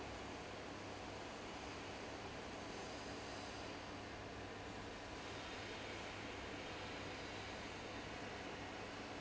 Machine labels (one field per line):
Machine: fan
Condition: abnormal